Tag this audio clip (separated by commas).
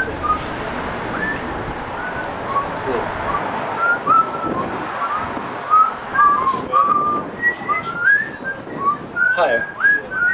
Speech